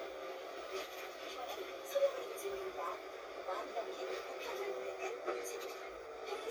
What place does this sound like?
bus